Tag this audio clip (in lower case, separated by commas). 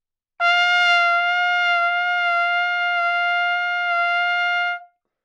music, brass instrument, musical instrument, trumpet